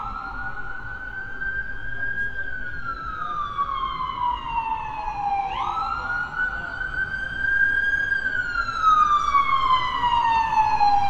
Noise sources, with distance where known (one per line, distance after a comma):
siren